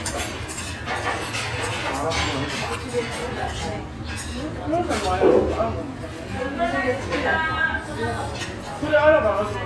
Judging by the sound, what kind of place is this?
restaurant